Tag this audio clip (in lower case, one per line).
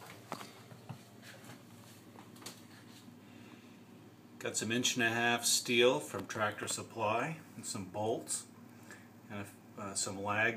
speech